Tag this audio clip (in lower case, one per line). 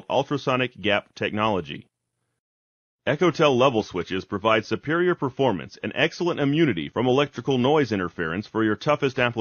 speech synthesizer
speech